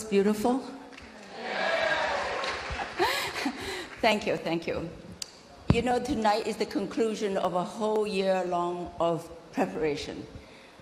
A woman is speaking and a crowd cheers